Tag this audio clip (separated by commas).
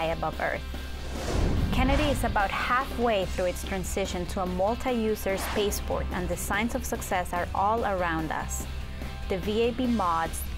Speech, Music